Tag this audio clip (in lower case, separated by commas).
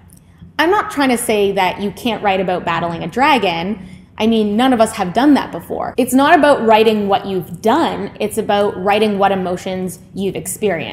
speech